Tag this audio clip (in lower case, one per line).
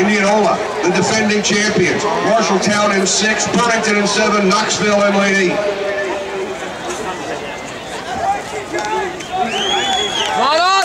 run
outside, urban or man-made
speech